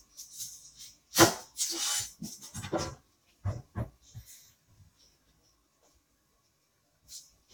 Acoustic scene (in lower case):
kitchen